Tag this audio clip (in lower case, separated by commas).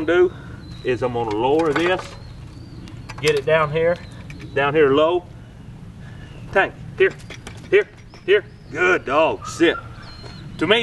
speech, domestic animals, dog, animal